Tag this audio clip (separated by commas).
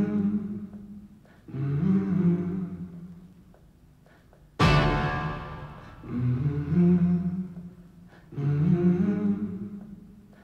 Music